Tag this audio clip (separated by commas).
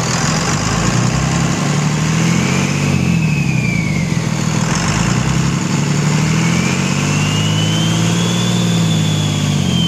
Medium engine (mid frequency)